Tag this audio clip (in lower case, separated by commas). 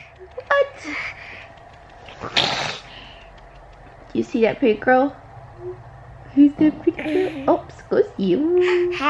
speech, sneeze